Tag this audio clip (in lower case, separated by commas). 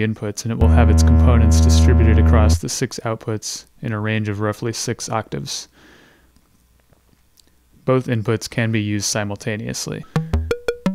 speech